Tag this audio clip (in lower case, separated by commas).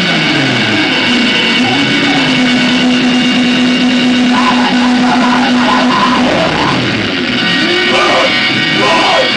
music